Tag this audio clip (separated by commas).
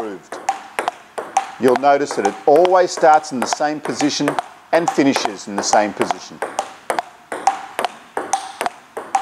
playing table tennis